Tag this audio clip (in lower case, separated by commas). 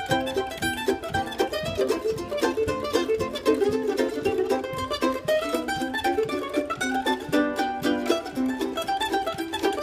mandolin, music